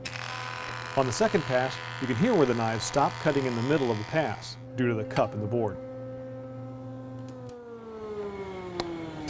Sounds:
planing timber

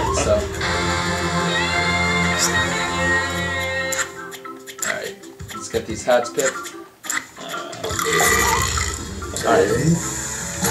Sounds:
speech
music

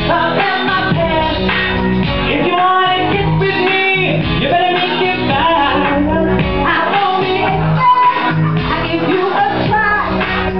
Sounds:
female singing
music

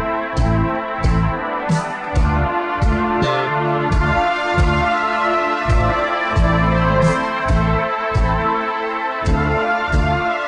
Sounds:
music

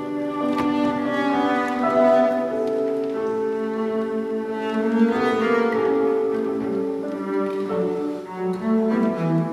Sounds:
musical instrument
playing cello
music
bowed string instrument
cello

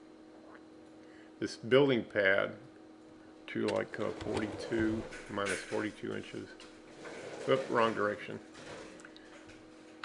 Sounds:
speech

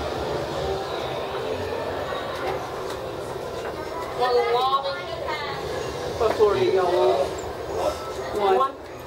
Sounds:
speech

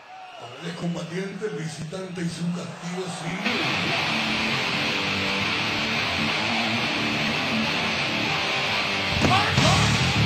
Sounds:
speech
music

